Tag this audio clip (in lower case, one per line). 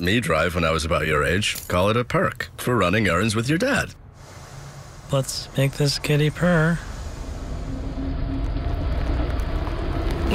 speech